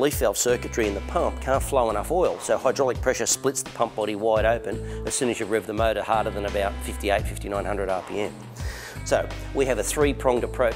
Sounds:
Music, Speech

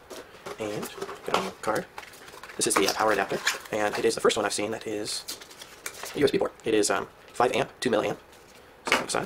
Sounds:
Speech

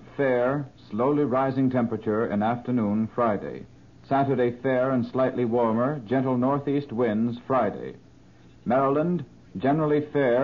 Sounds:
Speech

